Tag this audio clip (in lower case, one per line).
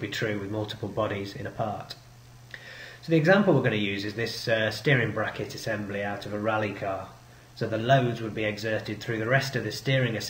speech